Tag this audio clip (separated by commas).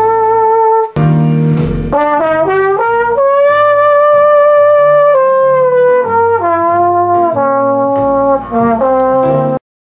playing trombone